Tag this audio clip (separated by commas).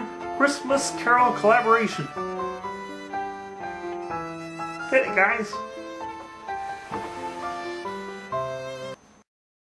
Speech, Music